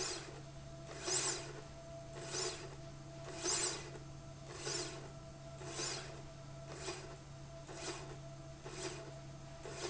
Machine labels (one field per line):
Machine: slide rail